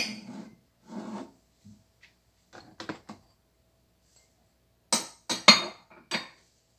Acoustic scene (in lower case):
kitchen